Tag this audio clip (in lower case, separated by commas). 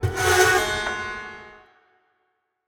screech